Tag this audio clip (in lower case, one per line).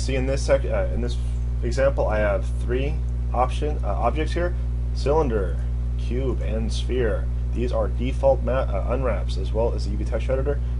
speech